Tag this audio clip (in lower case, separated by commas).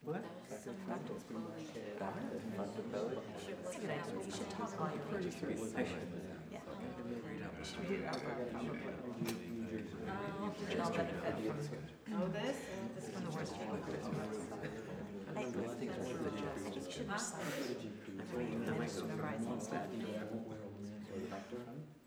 human voice, speech, human group actions, conversation, chatter